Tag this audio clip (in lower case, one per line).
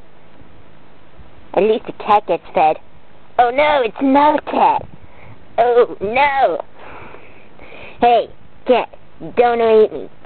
speech